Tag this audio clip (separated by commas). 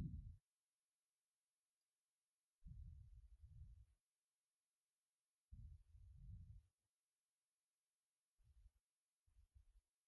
Speech, Silence, inside a small room